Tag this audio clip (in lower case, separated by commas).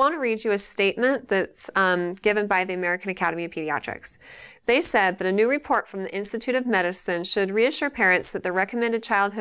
speech